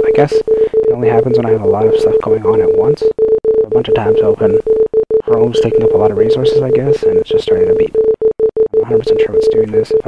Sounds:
Speech, Beep

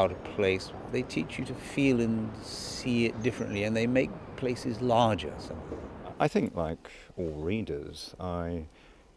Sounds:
Speech

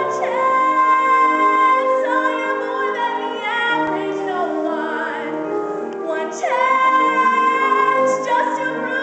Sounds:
Music, Female singing

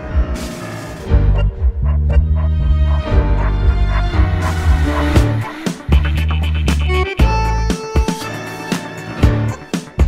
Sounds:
Music, Background music

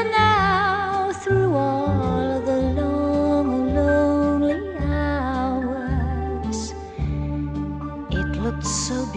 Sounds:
Music

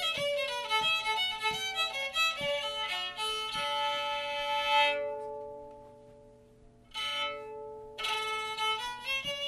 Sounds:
Violin, Music, Musical instrument

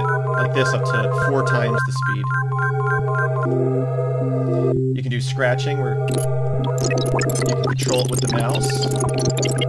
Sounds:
Music, Speech

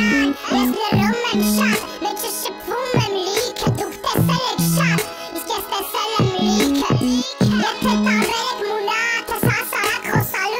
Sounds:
Music

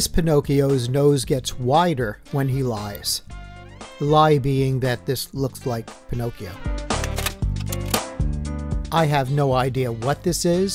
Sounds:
Music, Speech

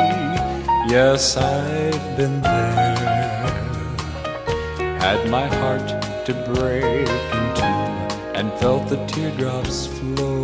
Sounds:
Music

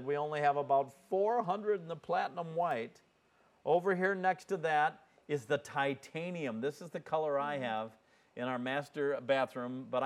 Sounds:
Speech

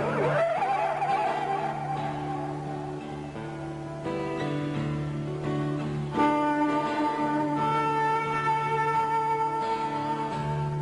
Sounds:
Musical instrument, Guitar, Music

